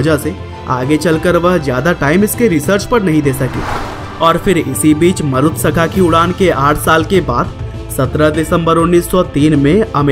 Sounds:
airplane

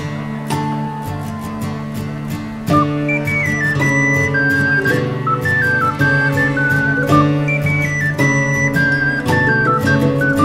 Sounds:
music

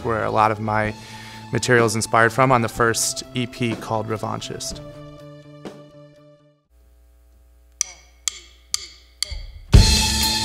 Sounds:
music, speech

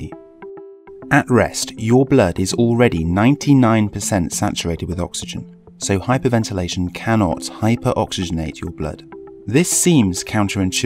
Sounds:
speech, narration, music

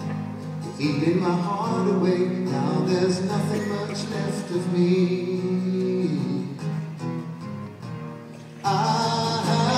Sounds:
music

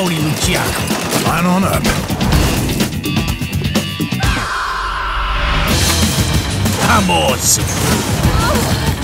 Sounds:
music, speech

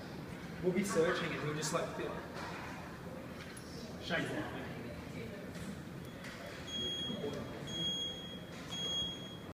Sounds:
speech

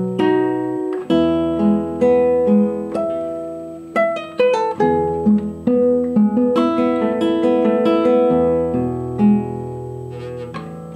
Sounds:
guitar, plucked string instrument, musical instrument, music, acoustic guitar, strum

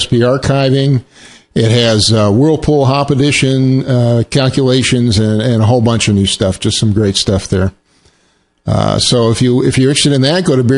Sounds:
speech

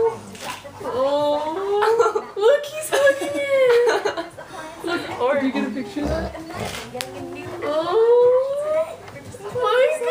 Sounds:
dog, animal, domestic animals, inside a small room, speech

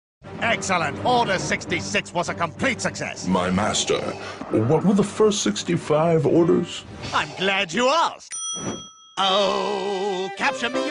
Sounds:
speech, music

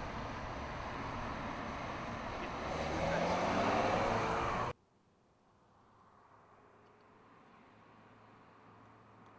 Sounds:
car, speech, vehicle

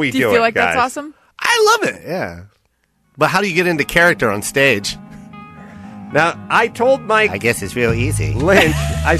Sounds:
music, speech

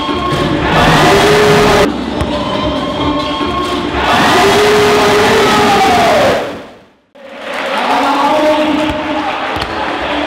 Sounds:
speech, music

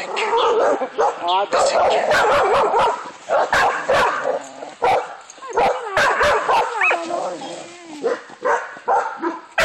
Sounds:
bark, bow-wow, outside, rural or natural, speech, dog, animal, pets

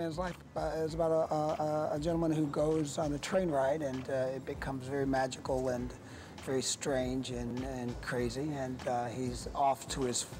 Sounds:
speech

